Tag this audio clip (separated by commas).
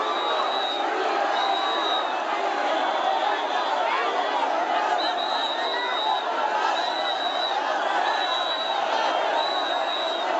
people cheering